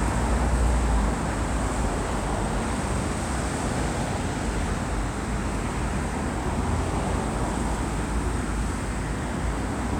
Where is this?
on a street